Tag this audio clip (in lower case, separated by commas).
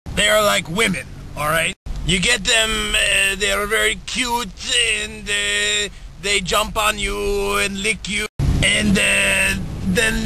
speech